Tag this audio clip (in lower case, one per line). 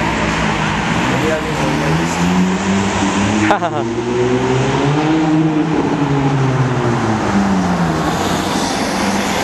speech
accelerating
vroom
vehicle
car